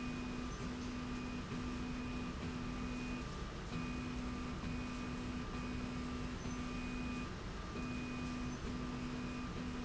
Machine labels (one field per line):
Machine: slide rail